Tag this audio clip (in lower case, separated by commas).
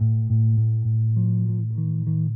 musical instrument, plucked string instrument, music, bass guitar, guitar